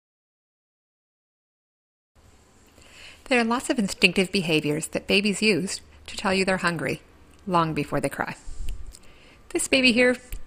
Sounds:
speech

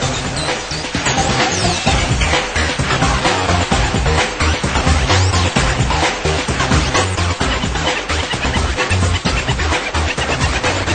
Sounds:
music

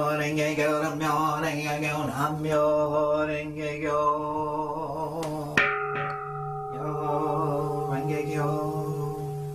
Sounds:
mantra

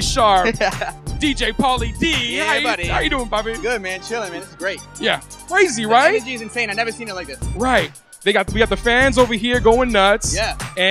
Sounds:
speech
music

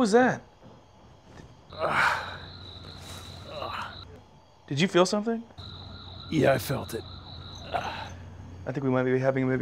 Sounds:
speech

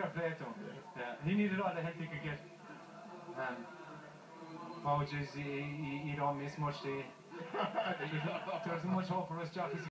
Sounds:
speech

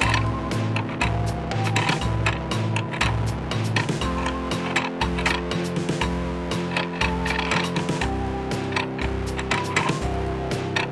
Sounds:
tick-tock
music

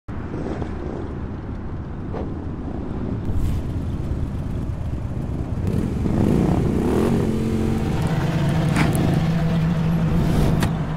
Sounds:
wind noise (microphone)

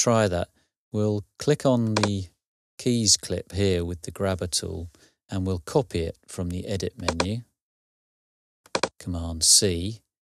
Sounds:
speech

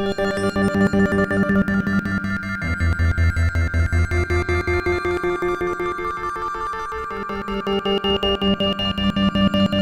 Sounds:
percussion
music

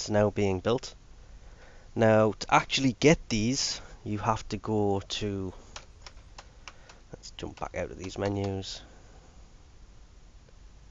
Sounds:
computer keyboard
typing

